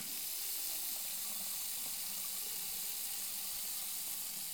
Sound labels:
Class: water tap